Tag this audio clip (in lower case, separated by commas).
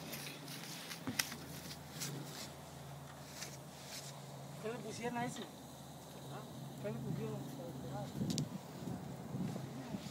speech